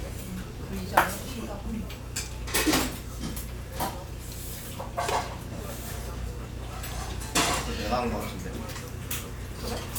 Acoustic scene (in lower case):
restaurant